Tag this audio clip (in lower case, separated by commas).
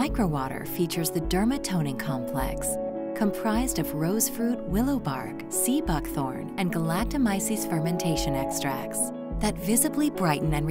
music, speech